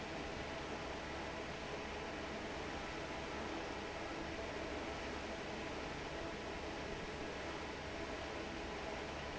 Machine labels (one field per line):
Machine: fan